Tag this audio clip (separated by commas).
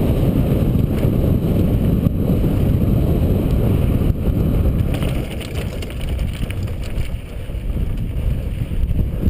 Vehicle